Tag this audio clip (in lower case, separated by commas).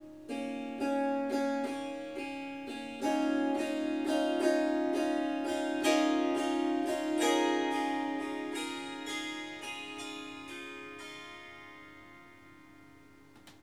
music, harp, musical instrument